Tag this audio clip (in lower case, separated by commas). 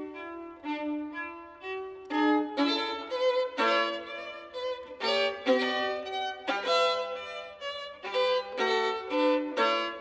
violin, music, musical instrument